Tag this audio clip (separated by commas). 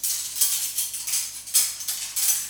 Cutlery, home sounds